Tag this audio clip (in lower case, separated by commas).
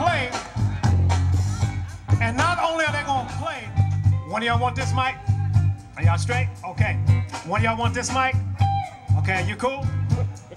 music, speech